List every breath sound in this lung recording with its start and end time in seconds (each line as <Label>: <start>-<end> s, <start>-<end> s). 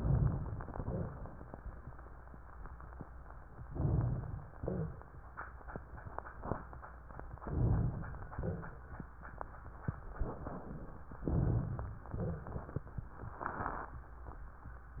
Inhalation: 3.69-4.57 s, 7.41-8.37 s, 11.26-12.01 s
Exhalation: 4.60-5.18 s, 8.38-8.89 s, 12.08-12.88 s
Crackles: 12.08-12.88 s